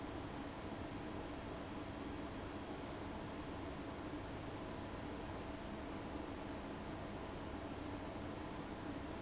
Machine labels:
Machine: fan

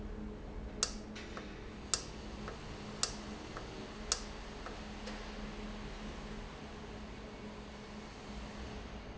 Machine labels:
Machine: valve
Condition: normal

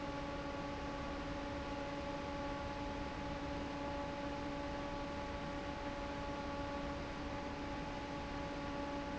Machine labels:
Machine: fan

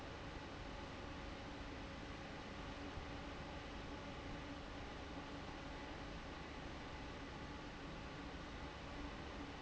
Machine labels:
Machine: fan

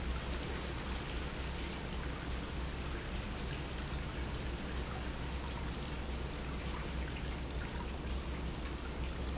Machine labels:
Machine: pump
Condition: normal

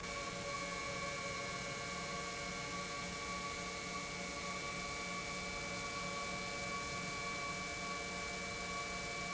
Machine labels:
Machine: pump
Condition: normal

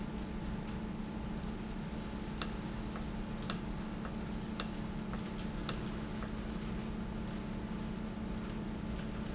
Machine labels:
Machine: valve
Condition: normal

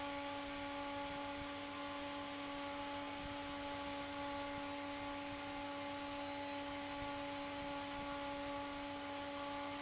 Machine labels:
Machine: fan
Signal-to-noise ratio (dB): 6 dB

